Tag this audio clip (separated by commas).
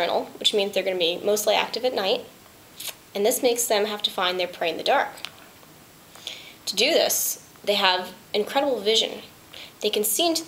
Speech